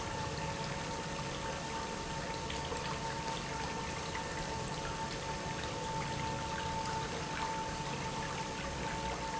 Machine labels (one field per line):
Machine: pump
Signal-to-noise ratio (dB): -6 dB